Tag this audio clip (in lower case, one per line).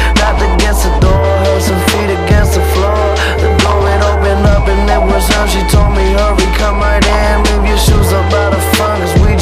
music